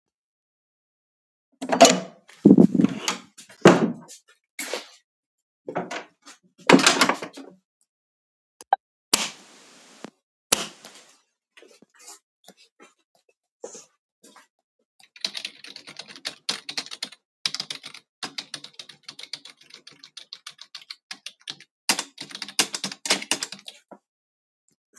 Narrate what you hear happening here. opened door, switched on the lights, typed int the keyboard